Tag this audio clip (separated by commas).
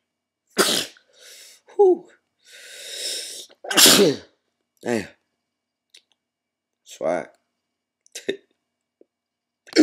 Speech, Sneeze, people sneezing